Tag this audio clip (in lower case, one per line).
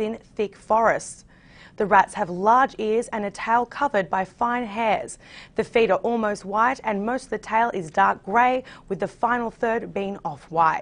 speech